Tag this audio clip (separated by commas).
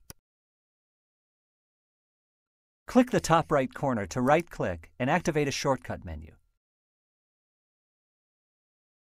Speech